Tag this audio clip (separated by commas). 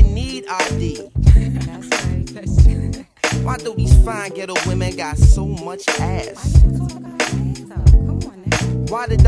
Music